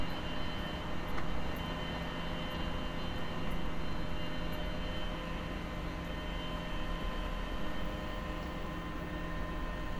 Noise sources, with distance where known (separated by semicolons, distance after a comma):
engine of unclear size, far